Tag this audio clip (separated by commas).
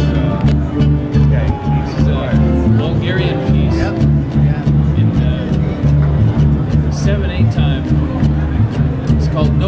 Ukulele, Music, Speech